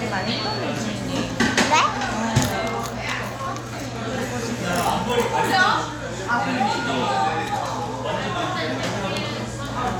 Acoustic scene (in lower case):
cafe